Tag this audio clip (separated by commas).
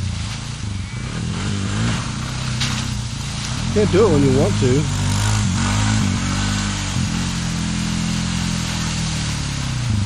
Speech